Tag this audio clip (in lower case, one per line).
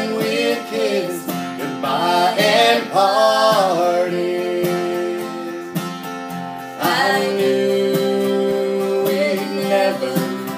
music